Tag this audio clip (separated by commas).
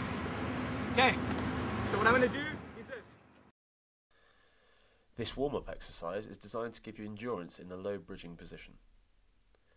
Speech